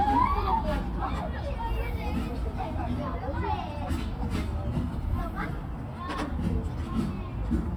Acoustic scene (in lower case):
park